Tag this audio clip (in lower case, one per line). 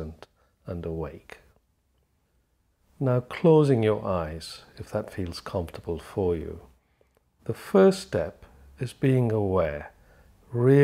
speech